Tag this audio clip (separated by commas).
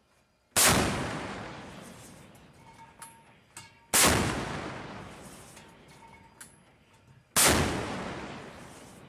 firing cannon